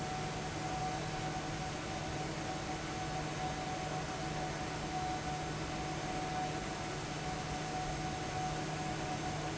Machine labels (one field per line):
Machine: fan